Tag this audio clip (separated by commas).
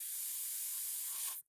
Hiss